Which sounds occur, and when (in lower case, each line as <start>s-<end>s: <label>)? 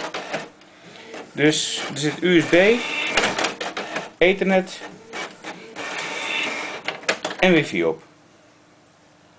0.0s-9.3s: mechanisms
4.6s-7.5s: printer